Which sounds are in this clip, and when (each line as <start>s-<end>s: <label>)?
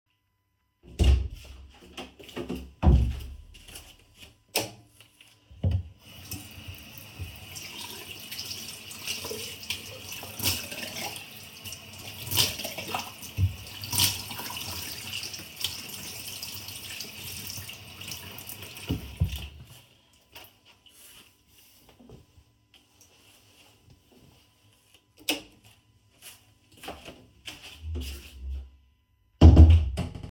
0.8s-3.4s: door
4.4s-4.8s: light switch
6.0s-19.8s: running water
25.0s-25.6s: light switch
26.6s-28.9s: footsteps
29.2s-30.3s: door